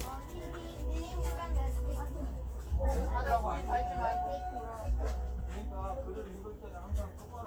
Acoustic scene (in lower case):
park